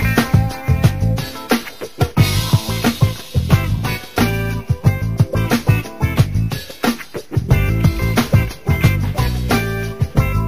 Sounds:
music

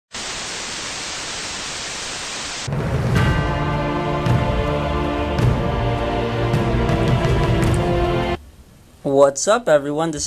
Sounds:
speech, music, inside a small room

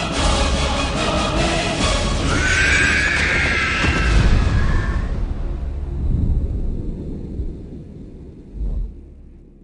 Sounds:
music

